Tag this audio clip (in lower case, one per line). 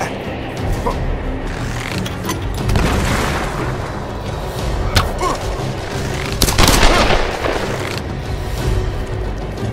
swoosh
arrow